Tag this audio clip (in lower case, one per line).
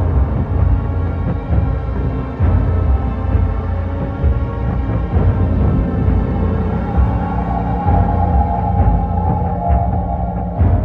music
scary music